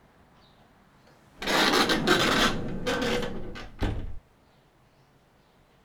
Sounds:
door, domestic sounds, sliding door

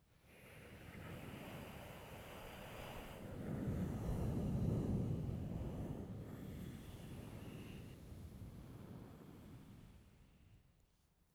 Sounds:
wind

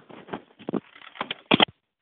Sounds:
alarm, telephone

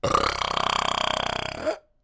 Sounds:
eructation

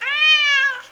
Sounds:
pets, animal, cat

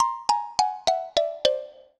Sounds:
percussion, marimba, mallet percussion, music, musical instrument

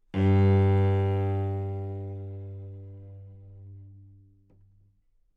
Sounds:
music, bowed string instrument, musical instrument

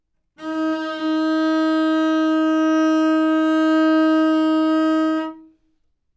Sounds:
music, bowed string instrument, musical instrument

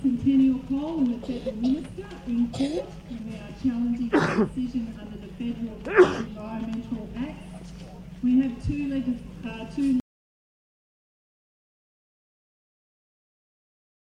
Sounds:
respiratory sounds, sneeze

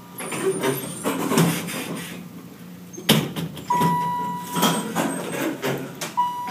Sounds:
sliding door, domestic sounds, door

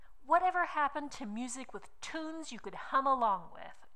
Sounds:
female speech, human voice, speech

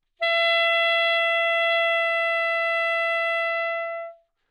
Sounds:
woodwind instrument, music, musical instrument

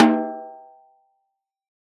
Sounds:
snare drum, music, musical instrument, drum, percussion

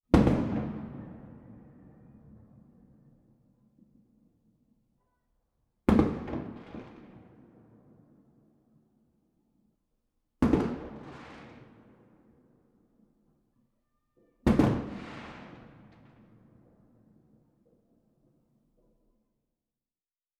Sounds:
fireworks, explosion

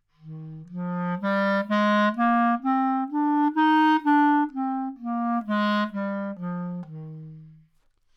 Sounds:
wind instrument, music, musical instrument

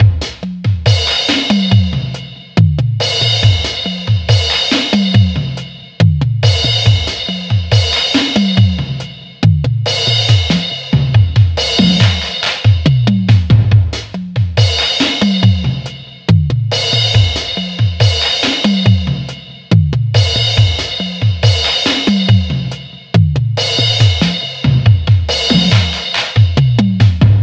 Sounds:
percussion, music, musical instrument, drum kit

